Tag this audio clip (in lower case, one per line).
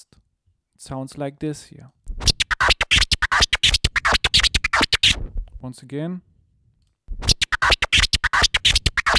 music
speech
scratching (performance technique)